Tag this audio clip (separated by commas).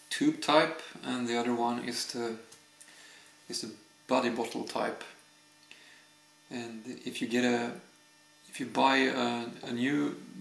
Speech